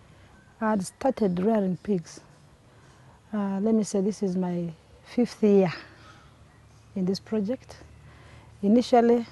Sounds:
Speech

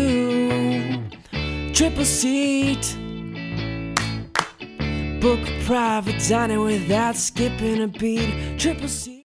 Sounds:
Music, Male singing

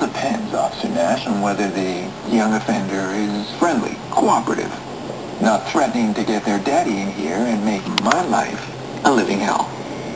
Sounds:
inside a small room, Speech

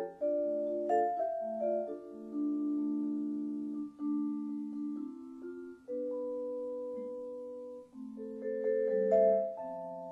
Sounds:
xylophone, Glockenspiel, playing marimba, Mallet percussion

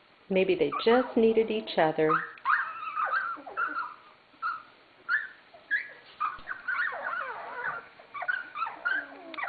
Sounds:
Animal, Dog, pets, Speech

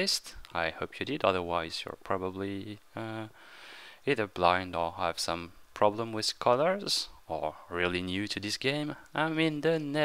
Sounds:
Speech

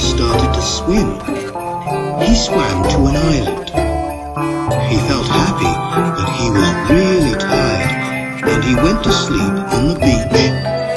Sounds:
Independent music, Music, Speech

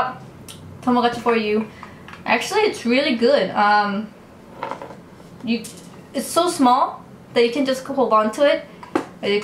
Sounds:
Speech

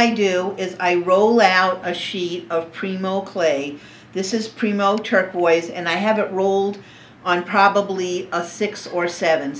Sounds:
Speech

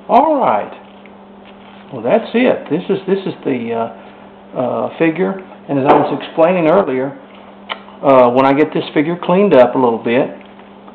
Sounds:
Speech

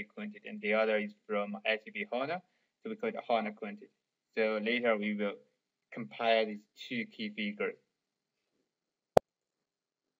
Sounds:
Speech

